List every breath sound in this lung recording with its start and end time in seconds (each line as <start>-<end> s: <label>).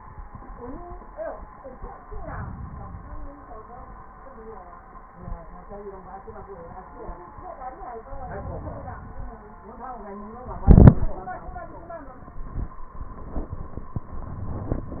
2.05-3.36 s: inhalation
8.08-9.40 s: inhalation